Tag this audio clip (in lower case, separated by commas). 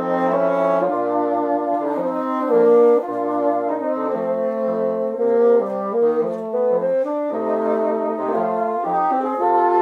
playing bassoon